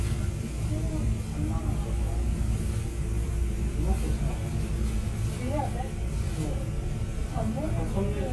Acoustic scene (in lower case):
bus